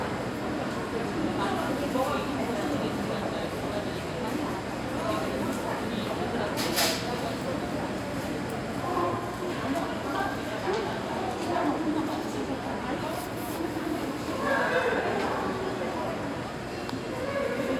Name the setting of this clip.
crowded indoor space